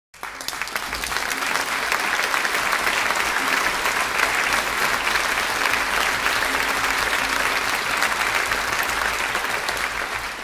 Echoing applause of an audience